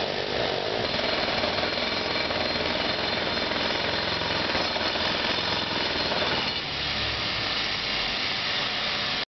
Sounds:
Tools, Jackhammer

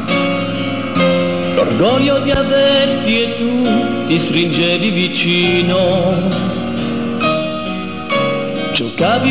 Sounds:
Music

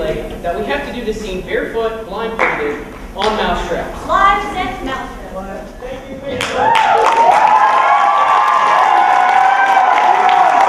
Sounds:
Speech

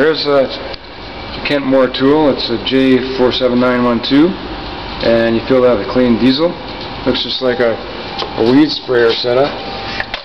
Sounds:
Speech

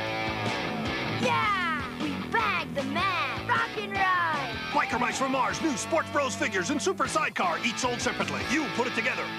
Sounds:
Music, Speech

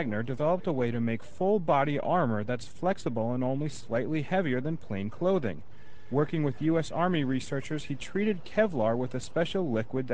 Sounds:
Speech

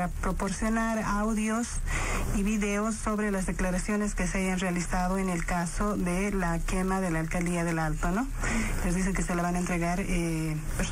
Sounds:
Speech, Radio

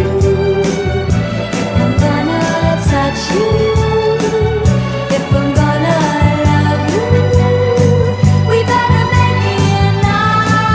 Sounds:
Music

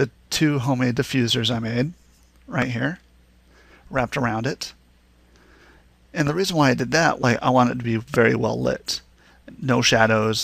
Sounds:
Speech

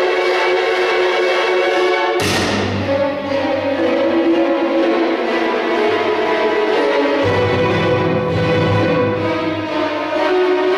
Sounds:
Musical instrument, Music

